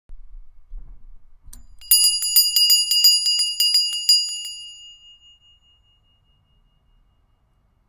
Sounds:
Bell

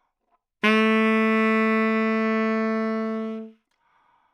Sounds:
Musical instrument, Music, Wind instrument

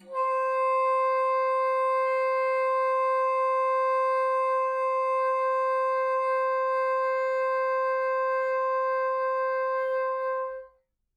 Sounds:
Music, Musical instrument, woodwind instrument

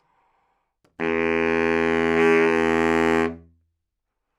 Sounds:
Musical instrument, woodwind instrument, Music

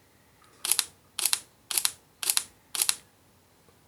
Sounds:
Mechanisms, Camera

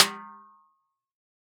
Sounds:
Percussion, Snare drum, Drum, Musical instrument, Music

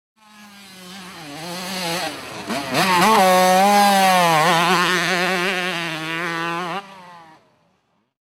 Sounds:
Vehicle, Motor vehicle (road), Motorcycle

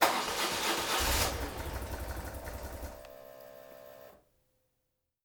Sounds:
Idling, Motorcycle, Engine starting, Motor vehicle (road), Vehicle, Engine

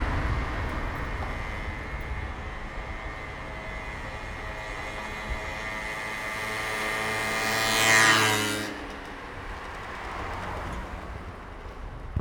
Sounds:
Engine

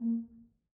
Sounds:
Music, Brass instrument, Musical instrument

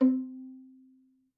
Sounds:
Music, Musical instrument, Bowed string instrument

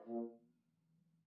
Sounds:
Brass instrument, Musical instrument, Music

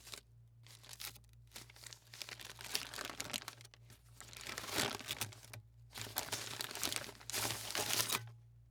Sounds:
crinkling

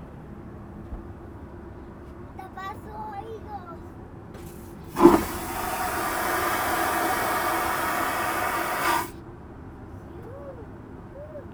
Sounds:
Toilet flush, Domestic sounds

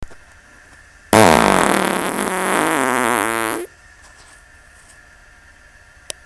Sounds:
Fart

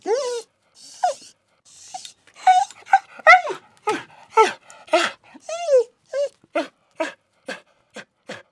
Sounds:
pets, Animal, Dog

